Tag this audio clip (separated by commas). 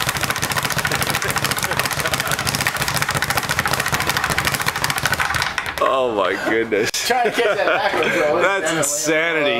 Speech